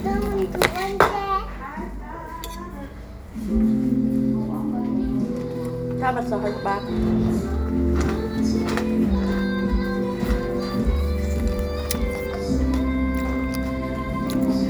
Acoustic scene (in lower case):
crowded indoor space